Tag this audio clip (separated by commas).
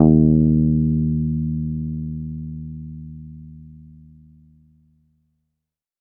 Bass guitar, Music, Plucked string instrument, Guitar, Musical instrument